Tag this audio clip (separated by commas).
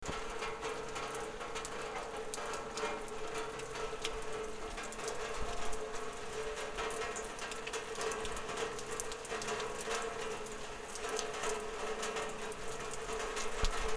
Rain, Water